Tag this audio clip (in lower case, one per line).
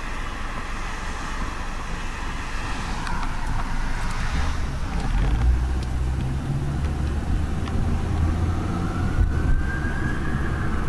siren
emergency vehicle
police car (siren)